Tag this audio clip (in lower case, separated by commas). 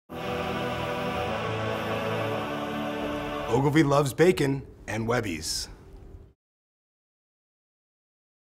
speech, music, man speaking, monologue